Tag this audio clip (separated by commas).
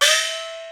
Percussion, Gong, Music, Musical instrument